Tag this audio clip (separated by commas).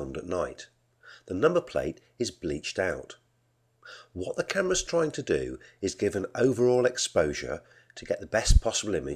Speech